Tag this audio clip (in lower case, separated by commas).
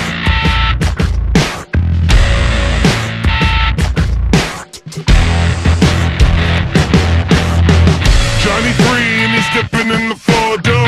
angry music, music